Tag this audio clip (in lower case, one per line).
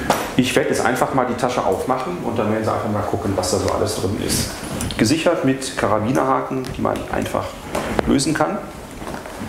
speech